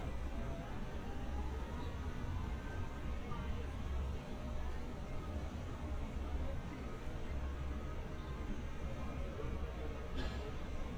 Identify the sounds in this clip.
person or small group talking